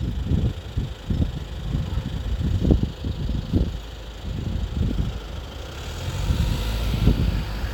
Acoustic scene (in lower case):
street